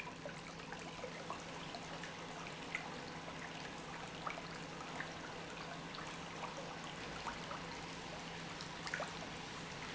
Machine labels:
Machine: pump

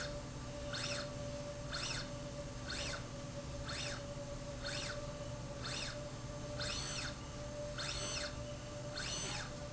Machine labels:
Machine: slide rail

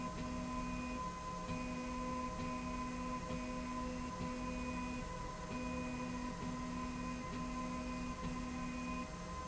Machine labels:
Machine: slide rail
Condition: normal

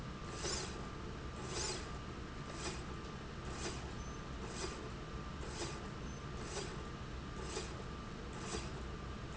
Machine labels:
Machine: slide rail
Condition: normal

